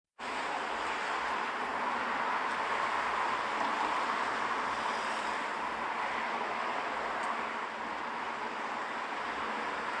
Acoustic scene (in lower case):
street